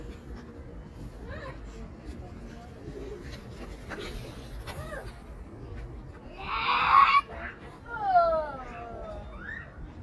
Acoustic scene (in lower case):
park